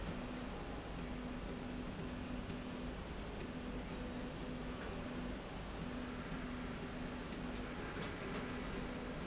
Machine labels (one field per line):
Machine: slide rail